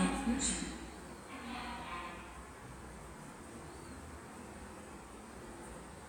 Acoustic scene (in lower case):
subway station